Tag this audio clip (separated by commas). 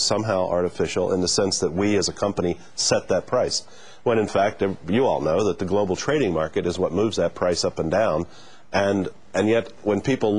Speech